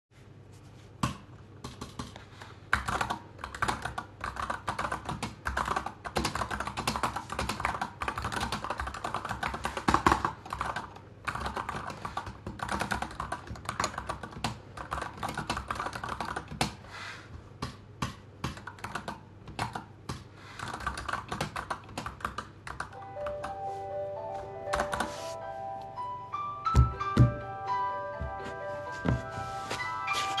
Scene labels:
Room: office; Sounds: keyboard typing, phone ringing

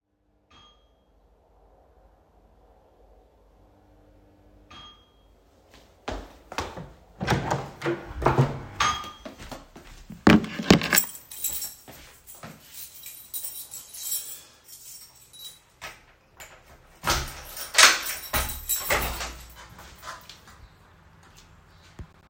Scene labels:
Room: living room, hallway; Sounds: bell ringing, footsteps, door (more than once), wardrobe or drawer, keys

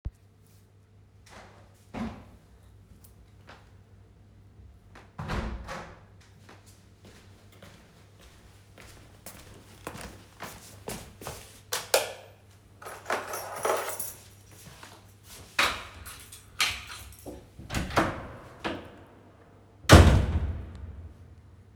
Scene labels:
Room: bedroom, hallway; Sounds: window (more than once), footsteps, light switch, keys, door

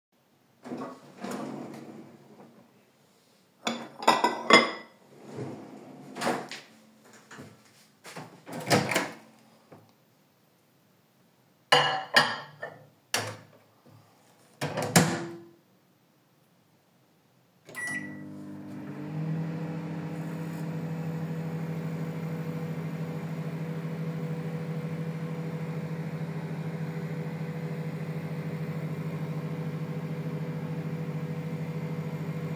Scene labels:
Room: kitchen; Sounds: wardrobe or drawer (more than once), cutlery and dishes, microwave

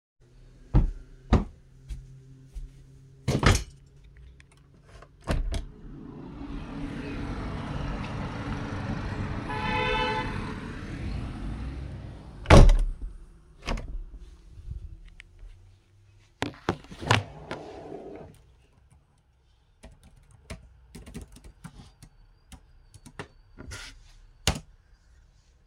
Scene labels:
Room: office; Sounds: footsteps, window (more than once), keyboard typing

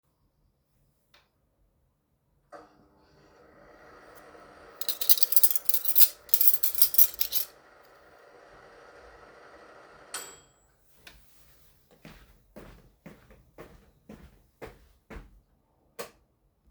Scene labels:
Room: kitchen; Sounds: microwave, cutlery and dishes, footsteps, light switch

